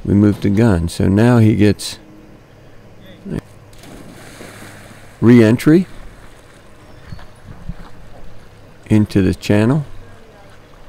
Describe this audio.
A man is talking and water splashes